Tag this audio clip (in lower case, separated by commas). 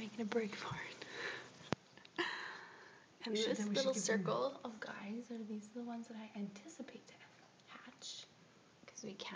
speech